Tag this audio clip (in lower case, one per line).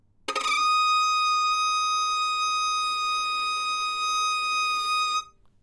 music
musical instrument
bowed string instrument